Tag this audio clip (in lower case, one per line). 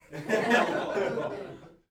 human voice
chuckle
laughter